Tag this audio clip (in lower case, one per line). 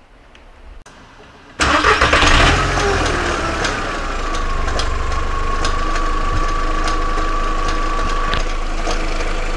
engine knocking